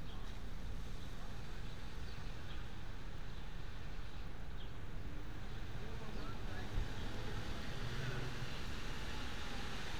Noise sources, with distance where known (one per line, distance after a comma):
person or small group talking